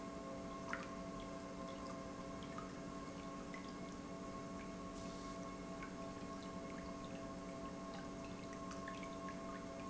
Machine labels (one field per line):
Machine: pump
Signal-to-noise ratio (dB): 6 dB